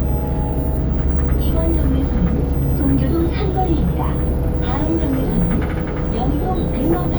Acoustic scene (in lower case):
bus